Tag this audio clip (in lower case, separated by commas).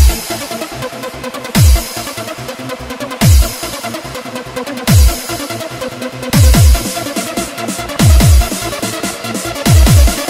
techno, trance music, electronic music, music